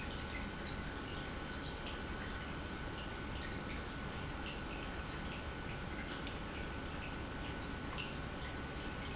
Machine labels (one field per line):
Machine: pump